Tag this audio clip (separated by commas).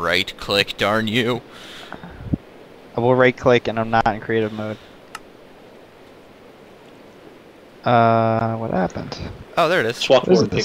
Speech